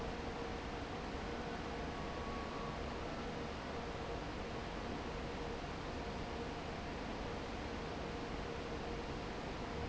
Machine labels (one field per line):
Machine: fan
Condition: normal